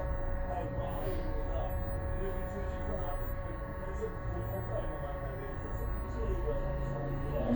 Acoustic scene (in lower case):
bus